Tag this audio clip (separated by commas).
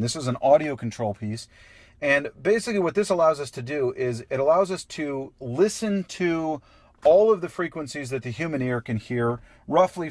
Speech